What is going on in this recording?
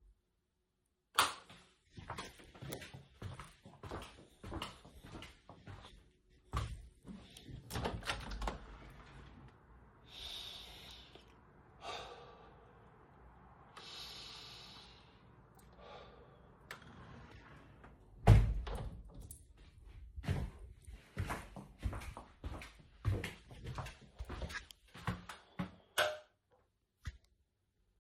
The phone was carried on the person throughout the recording. The person turned on a light switch then walked to a window. The window was opened and the person took two deep breaths before closing the window with a watch band clinging audible during and right after closing. The person then walked back to the light switch and turned it off.